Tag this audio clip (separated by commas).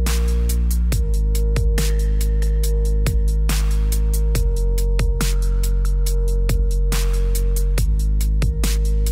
Music, Dubstep